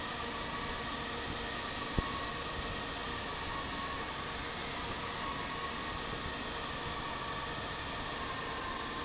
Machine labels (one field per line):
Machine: fan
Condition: normal